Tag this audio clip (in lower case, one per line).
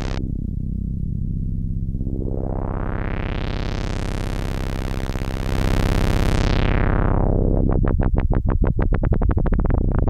synthesizer
musical instrument
music